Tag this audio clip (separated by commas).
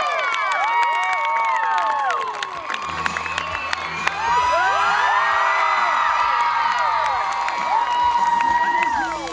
Female singing, Music